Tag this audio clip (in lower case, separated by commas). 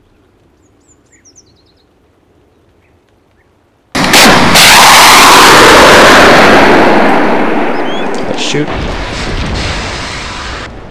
explosion